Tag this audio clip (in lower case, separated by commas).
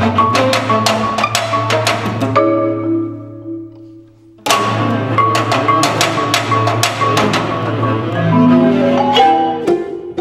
music, musical instrument, vibraphone, violin, xylophone, bowed string instrument, classical music